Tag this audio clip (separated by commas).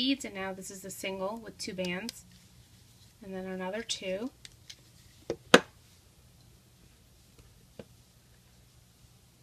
Speech